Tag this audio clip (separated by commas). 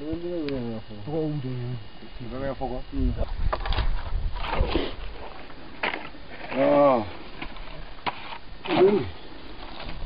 Speech, outside, rural or natural